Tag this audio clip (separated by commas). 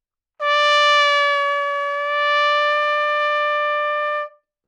Musical instrument, Brass instrument, Trumpet, Music